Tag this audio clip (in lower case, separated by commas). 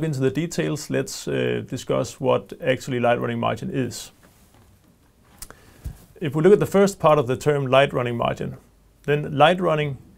speech